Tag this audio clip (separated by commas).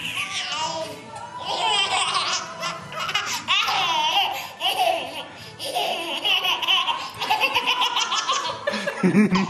baby laughter